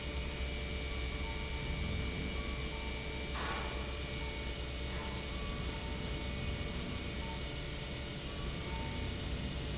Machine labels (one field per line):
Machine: pump